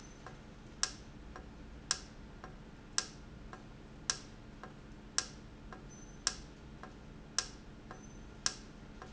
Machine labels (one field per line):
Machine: valve